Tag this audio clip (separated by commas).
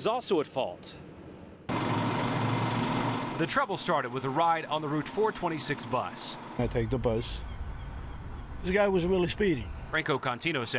Bus, Vehicle, Speech